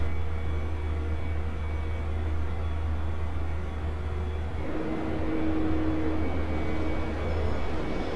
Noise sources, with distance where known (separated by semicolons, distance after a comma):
engine of unclear size; unidentified alert signal